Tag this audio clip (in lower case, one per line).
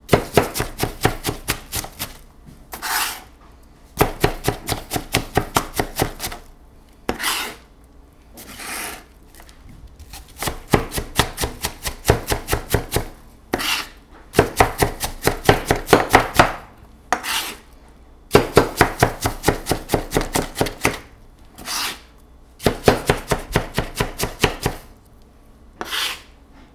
domestic sounds